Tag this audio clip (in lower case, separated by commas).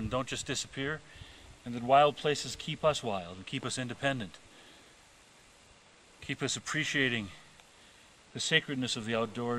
speech